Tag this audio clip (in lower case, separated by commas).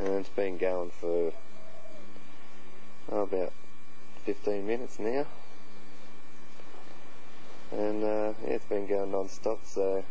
speech